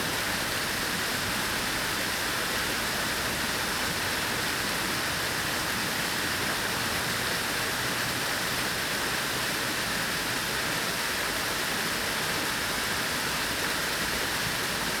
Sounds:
Water

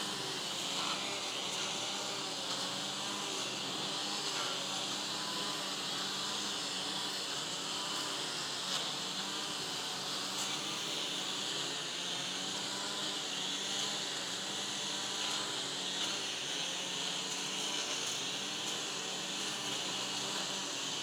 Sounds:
Engine

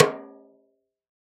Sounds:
Drum, Musical instrument, Snare drum, Music, Percussion

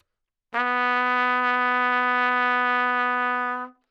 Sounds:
Musical instrument, Music, Brass instrument, Trumpet

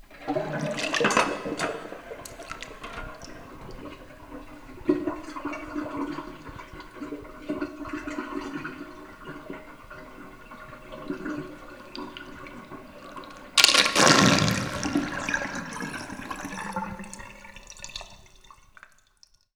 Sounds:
Sink (filling or washing), home sounds

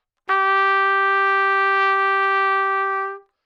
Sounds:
Trumpet, Music, Musical instrument, Brass instrument

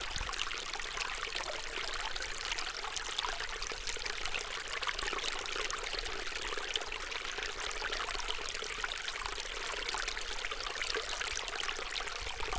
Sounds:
Water, Stream

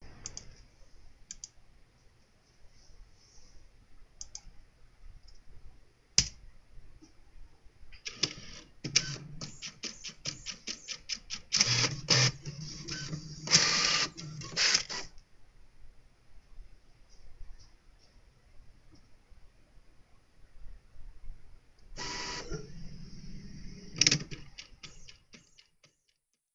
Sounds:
Mechanisms, Printer

